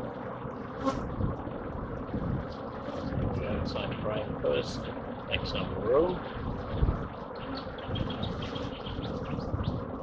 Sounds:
bee or wasp
housefly
insect

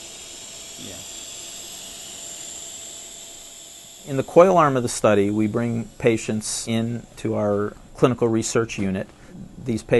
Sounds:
inside a small room
speech

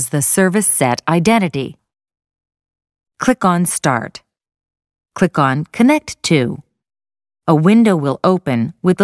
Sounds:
speech

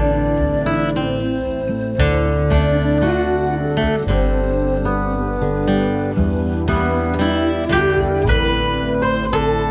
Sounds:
music

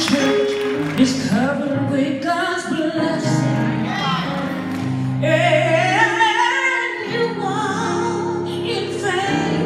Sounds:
music

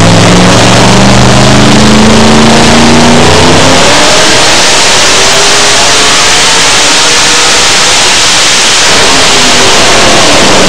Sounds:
vehicle
truck

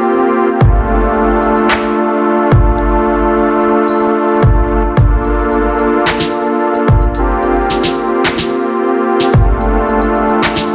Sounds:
music

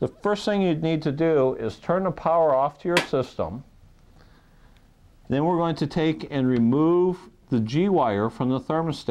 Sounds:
speech

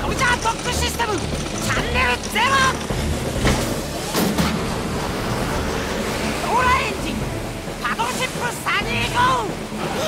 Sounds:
music
speech

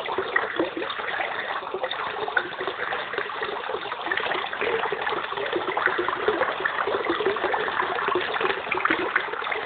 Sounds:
outside, urban or man-made
slosh

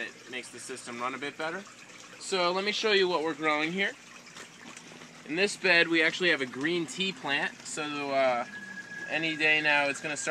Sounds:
inside a large room or hall
speech

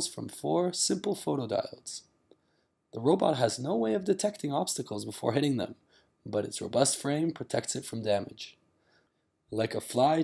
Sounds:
speech

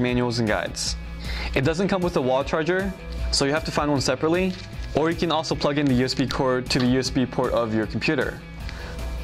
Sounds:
music
speech

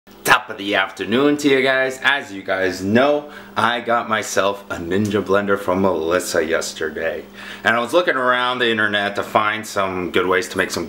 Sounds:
speech

